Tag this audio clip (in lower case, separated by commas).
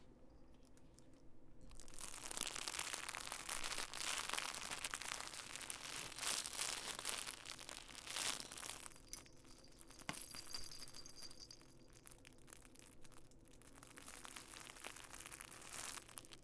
crinkling